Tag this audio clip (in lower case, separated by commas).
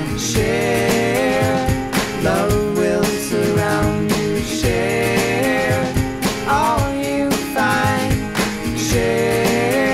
music, grunge